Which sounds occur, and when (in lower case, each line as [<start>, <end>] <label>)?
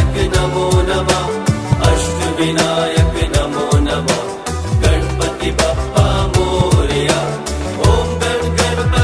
[0.00, 1.47] mantra
[0.00, 9.03] music
[1.72, 4.25] mantra
[4.81, 7.33] mantra
[7.76, 9.03] mantra